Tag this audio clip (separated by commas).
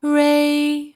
Human voice, Female singing, Singing